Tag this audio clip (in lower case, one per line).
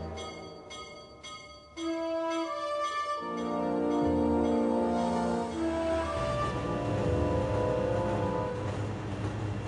music